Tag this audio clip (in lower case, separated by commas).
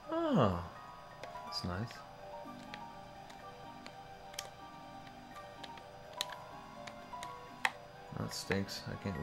music, speech